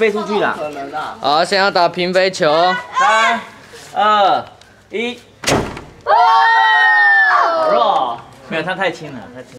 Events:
[0.00, 2.73] man speaking
[0.00, 9.55] conversation
[0.00, 9.55] wind
[0.11, 0.50] kid speaking
[2.37, 3.37] shout
[2.98, 3.41] man speaking
[3.61, 3.99] surface contact
[3.89, 4.38] man speaking
[4.41, 4.64] tick
[4.57, 4.87] breathing
[4.87, 5.10] man speaking
[5.41, 5.87] gunfire
[5.92, 6.03] tick
[6.04, 8.12] shout
[6.37, 7.31] whistling
[8.11, 8.22] tick
[8.47, 9.55] man speaking

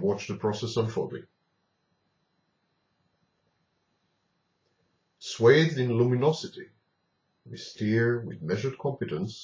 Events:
[0.00, 1.24] male speech
[0.00, 9.43] mechanisms
[5.19, 6.72] male speech
[7.38, 9.43] male speech

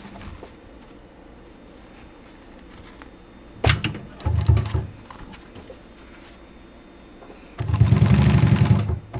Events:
[0.00, 0.50] generic impact sounds
[0.00, 9.15] mechanisms
[0.75, 1.03] generic impact sounds
[1.35, 3.06] generic impact sounds
[3.61, 3.99] generic impact sounds
[4.18, 4.89] sewing machine
[4.97, 6.31] generic impact sounds
[7.19, 7.54] generic impact sounds
[7.49, 8.95] sewing machine
[9.08, 9.15] sewing machine

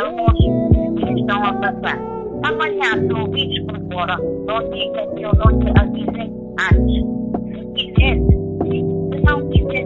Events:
[0.00, 0.34] female speech
[0.00, 3.30] singing
[0.00, 9.85] music
[0.94, 1.97] female speech
[2.41, 4.17] female speech
[4.45, 6.29] female speech
[6.54, 7.05] female speech
[7.31, 7.67] noise
[7.73, 8.20] female speech
[8.56, 8.91] female speech
[9.08, 9.85] female speech

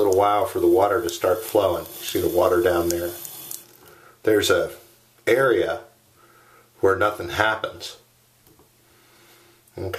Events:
[0.00, 1.82] man speaking
[0.00, 3.77] sink (filling or washing)
[0.00, 9.95] background noise
[0.05, 0.15] tick
[1.03, 1.14] tick
[1.40, 1.52] tick
[1.78, 1.91] tick
[1.99, 3.14] man speaking
[2.85, 2.95] tick
[3.18, 3.30] tick
[3.44, 3.57] tick
[3.73, 4.18] breathing
[4.19, 4.85] man speaking
[5.10, 5.22] generic impact sounds
[5.22, 5.94] man speaking
[6.14, 6.68] breathing
[6.76, 7.97] man speaking
[8.42, 8.67] generic impact sounds
[8.77, 9.62] breathing
[9.72, 9.95] man speaking

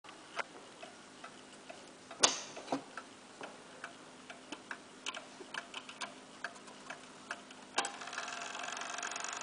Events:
[0.00, 9.42] alarm clock
[0.00, 9.42] mechanisms
[0.29, 0.45] tick
[0.70, 0.92] tick
[1.16, 1.30] tick
[1.56, 1.73] tick
[2.08, 2.28] tick
[2.64, 2.95] tick
[3.34, 3.50] tick
[3.76, 3.90] tick
[4.20, 4.33] tick
[4.47, 4.78] tick
[5.01, 5.16] tick
[5.49, 6.07] tick
[6.33, 6.50] tick
[6.83, 6.99] tick
[7.25, 7.46] tick
[7.67, 7.90] tick

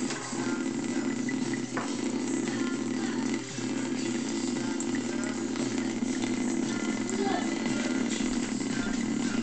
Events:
[0.00, 0.20] generic impact sounds
[0.00, 9.42] mechanisms
[0.00, 9.42] faucet
[1.69, 1.95] generic impact sounds
[7.22, 7.46] female speech
[8.07, 8.40] generic impact sounds

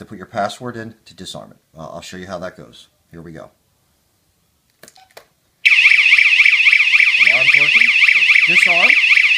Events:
[0.00, 0.90] man speaking
[0.00, 9.35] background noise
[1.04, 1.53] man speaking
[1.71, 2.87] man speaking
[3.11, 3.54] man speaking
[4.62, 5.24] generic impact sounds
[4.94, 5.10] bleep
[5.62, 9.35] siren
[7.15, 8.31] man speaking
[8.45, 8.90] man speaking

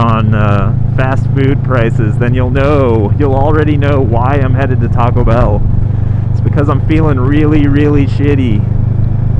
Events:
[0.00, 0.74] male speech
[0.00, 9.35] motorcycle
[0.94, 1.19] male speech
[1.32, 2.07] male speech
[2.17, 3.04] male speech
[3.17, 5.59] male speech
[5.85, 6.24] breathing
[6.31, 8.63] male speech
[8.96, 9.05] tick

